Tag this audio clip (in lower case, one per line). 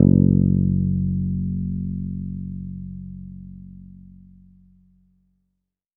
musical instrument
guitar
bass guitar
plucked string instrument
music